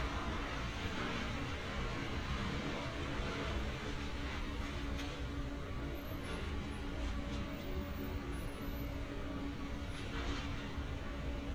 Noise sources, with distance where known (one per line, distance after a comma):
music from an unclear source, far